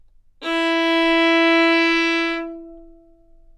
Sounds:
Music, Bowed string instrument, Musical instrument

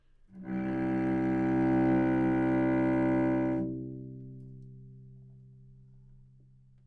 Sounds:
Musical instrument, Music, Bowed string instrument

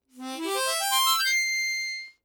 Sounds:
Music, Harmonica, Musical instrument

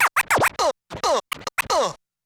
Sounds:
Music, Musical instrument, Scratching (performance technique)

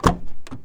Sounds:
Vehicle, Car, Motor vehicle (road)

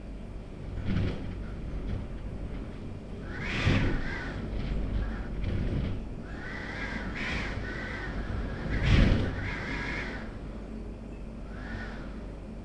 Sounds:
Wind

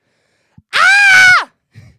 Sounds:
Screaming, Human voice

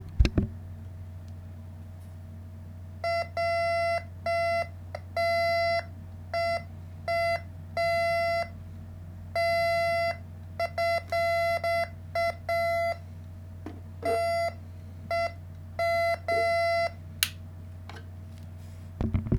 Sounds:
Alarm

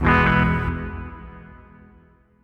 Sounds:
Plucked string instrument, Musical instrument, Music, Guitar

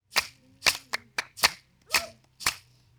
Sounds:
Clapping, Hands

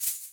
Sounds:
Music, Musical instrument, Percussion, Rattle (instrument)

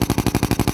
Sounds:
Tools, Drill, Power tool

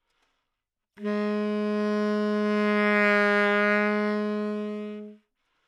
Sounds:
Musical instrument, woodwind instrument, Music

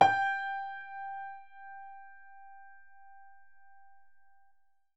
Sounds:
Piano, Musical instrument, Music, Keyboard (musical)

